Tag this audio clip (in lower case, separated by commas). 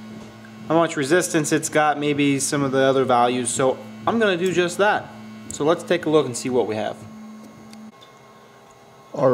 speech, inside a small room